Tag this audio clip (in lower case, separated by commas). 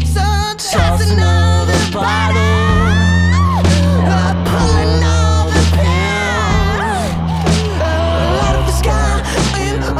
music